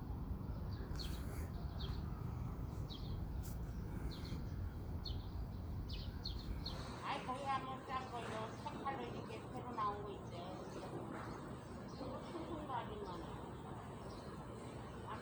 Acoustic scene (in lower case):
park